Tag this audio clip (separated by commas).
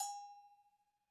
Bell